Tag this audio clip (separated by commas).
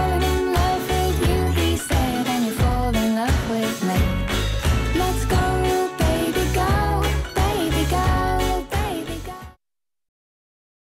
Music, Soundtrack music